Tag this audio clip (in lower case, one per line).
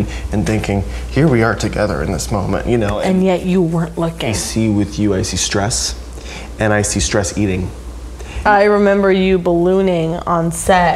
woman speaking